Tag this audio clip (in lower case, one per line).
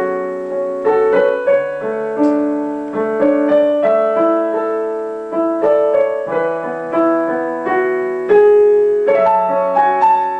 piano
keyboard (musical)